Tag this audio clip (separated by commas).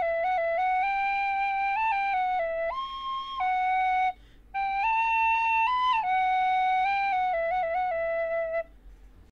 Lullaby, Music